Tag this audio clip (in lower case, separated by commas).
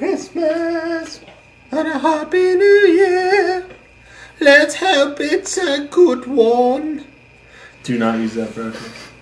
speech